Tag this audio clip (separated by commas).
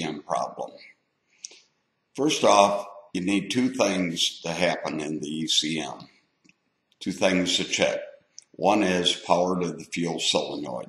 Speech